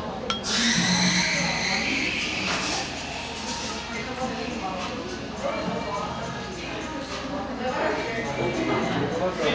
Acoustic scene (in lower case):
cafe